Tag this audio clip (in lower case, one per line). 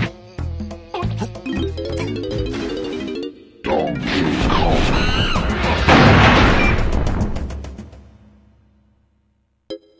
music